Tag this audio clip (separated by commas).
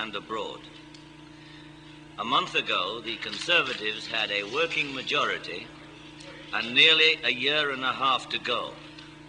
Male speech, Speech, monologue